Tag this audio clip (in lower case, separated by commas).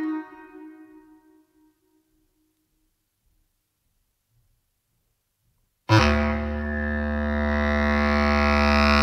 didgeridoo